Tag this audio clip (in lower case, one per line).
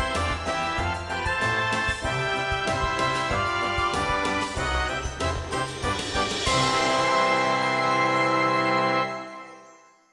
soundtrack music
music